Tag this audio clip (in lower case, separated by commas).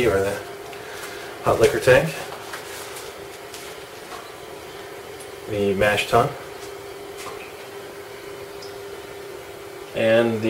speech